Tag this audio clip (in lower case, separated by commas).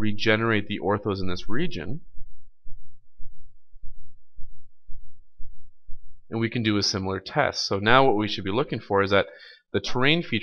speech